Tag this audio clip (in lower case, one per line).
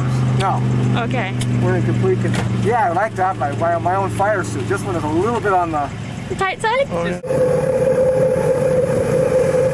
speech